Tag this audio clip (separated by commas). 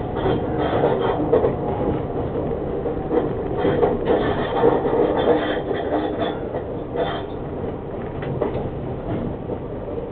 Vehicle